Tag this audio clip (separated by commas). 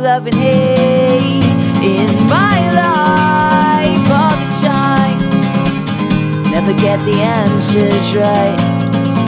Music, Female singing